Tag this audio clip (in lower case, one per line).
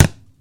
thump